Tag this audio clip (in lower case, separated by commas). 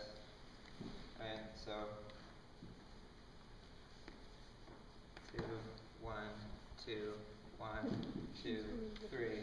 speech